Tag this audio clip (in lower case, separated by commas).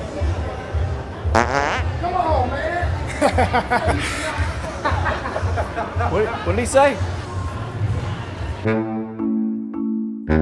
people farting